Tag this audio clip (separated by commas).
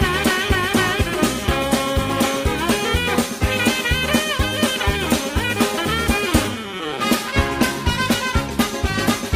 Music